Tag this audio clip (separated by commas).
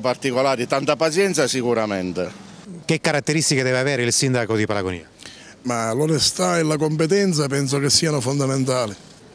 Television, Speech